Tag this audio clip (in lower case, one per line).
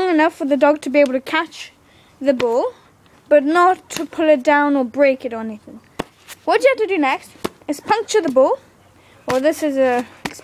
speech